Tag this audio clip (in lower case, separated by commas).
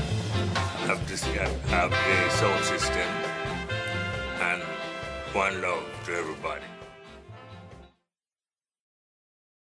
speech, music